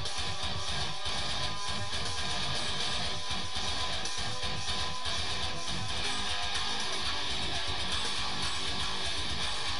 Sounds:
guitar, bass guitar, music, musical instrument, plucked string instrument

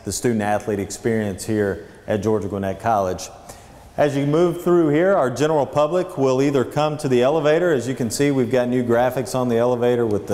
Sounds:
speech

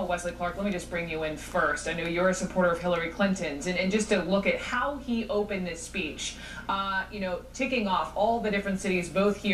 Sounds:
speech, woman speaking

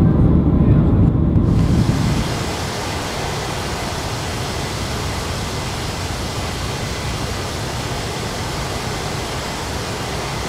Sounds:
fixed-wing aircraft, aircraft, vehicle

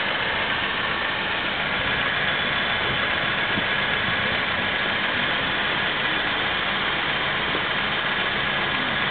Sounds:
vehicle, engine, medium engine (mid frequency), idling

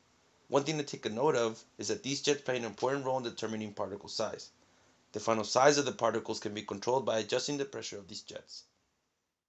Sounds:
speech

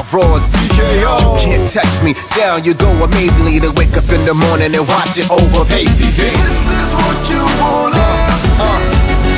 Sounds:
music

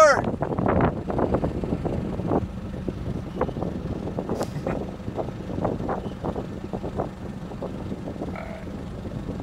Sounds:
flap, speech, vehicle, outside, rural or natural

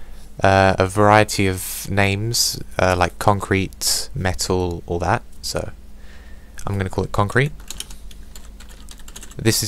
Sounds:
computer keyboard, typing

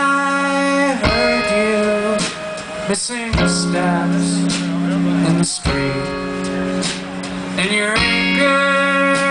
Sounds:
music

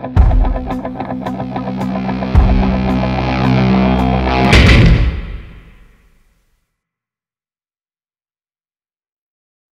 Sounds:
music

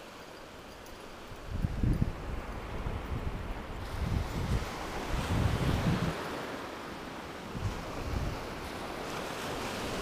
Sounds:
outside, rural or natural, ocean, ocean burbling

